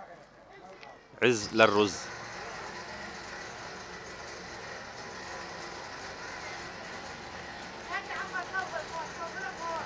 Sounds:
speech

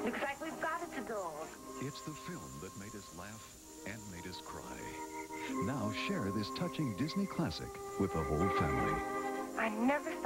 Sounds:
speech, music

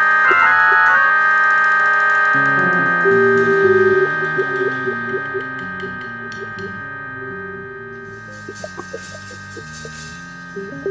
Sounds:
piano, musical instrument, keyboard (musical), music

